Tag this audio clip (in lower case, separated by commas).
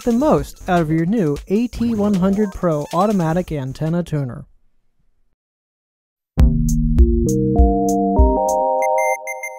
synthesizer